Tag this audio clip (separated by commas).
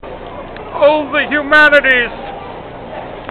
Human voice, Shout, Yell